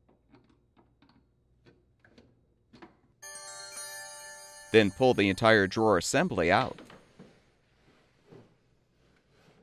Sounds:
Speech, Music

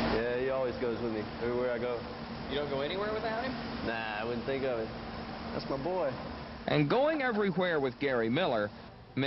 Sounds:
Speech

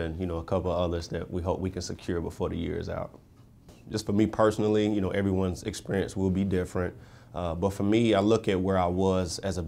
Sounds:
Speech

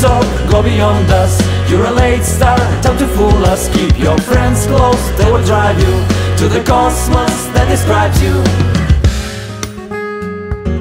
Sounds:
Independent music

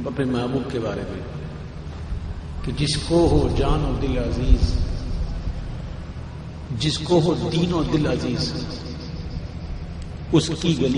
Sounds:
Speech

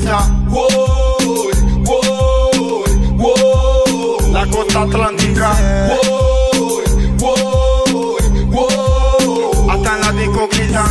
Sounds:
Afrobeat

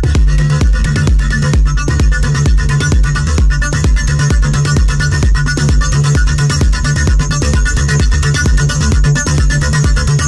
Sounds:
Electronic music, Music, Electronic dance music

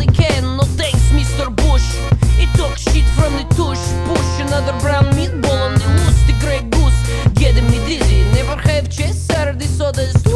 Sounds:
Music, Pop music, Country

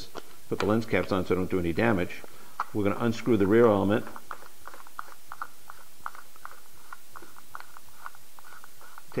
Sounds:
Speech

